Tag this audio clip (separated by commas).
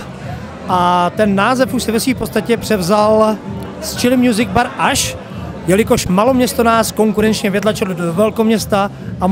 Speech